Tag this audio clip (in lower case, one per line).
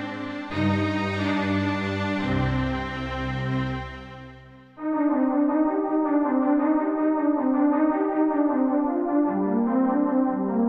music